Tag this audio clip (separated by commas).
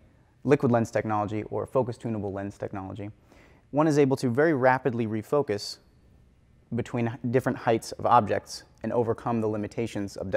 Speech